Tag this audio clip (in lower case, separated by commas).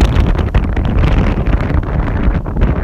wind